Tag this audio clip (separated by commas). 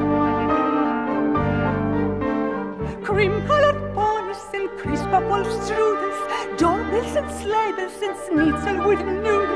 Tender music, Music